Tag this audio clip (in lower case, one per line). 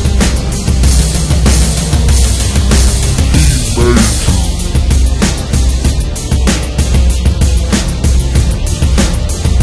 music
angry music